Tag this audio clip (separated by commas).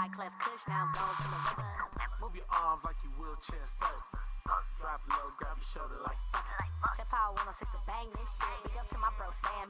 Music, Soundtrack music